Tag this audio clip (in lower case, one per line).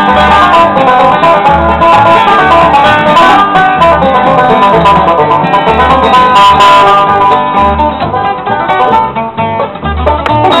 bluegrass
country
music
musical instrument
playing banjo
plucked string instrument
guitar
banjo